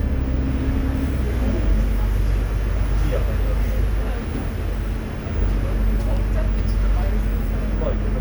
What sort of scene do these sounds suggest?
bus